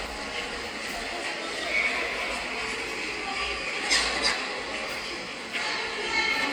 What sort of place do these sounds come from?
subway station